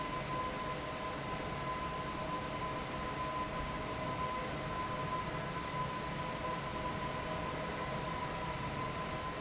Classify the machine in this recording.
fan